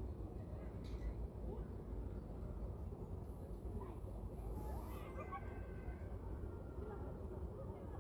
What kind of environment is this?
residential area